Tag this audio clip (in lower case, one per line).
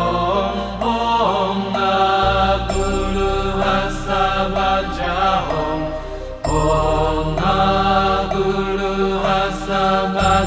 mantra
music